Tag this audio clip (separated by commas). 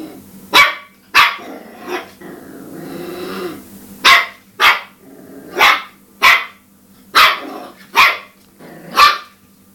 Bark, Dog, pets, dog bow-wow, Animal, Bow-wow